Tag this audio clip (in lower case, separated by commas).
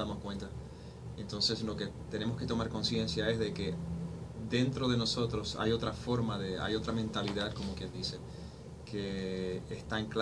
speech